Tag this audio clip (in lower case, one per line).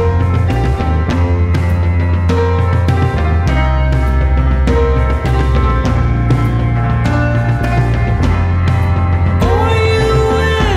music